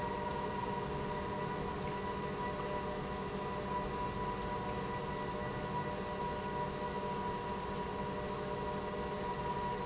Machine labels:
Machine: pump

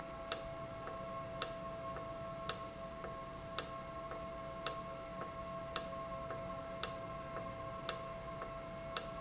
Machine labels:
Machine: valve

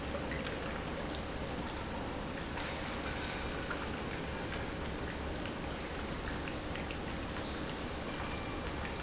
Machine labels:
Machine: pump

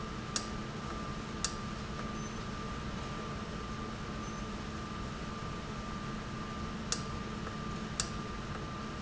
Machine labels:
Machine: valve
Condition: normal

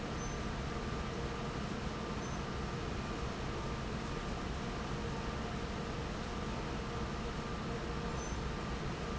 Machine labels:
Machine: fan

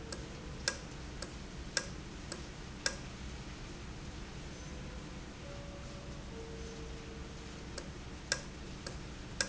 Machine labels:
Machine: valve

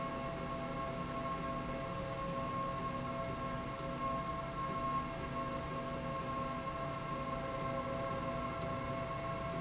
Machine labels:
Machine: slide rail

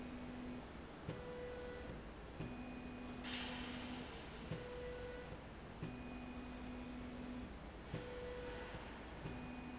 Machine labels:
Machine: slide rail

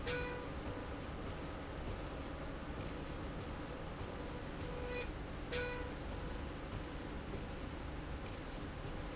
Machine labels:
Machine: slide rail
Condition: normal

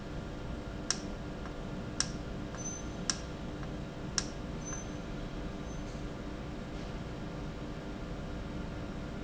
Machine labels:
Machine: valve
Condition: normal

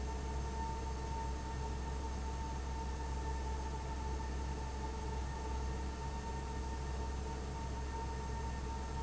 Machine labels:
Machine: fan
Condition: abnormal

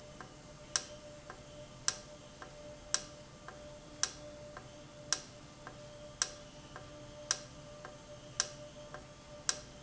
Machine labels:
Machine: valve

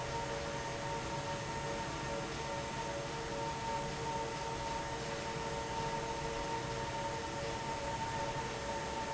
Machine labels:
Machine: fan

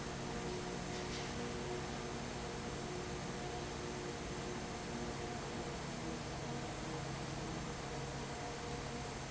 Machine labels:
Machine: fan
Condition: abnormal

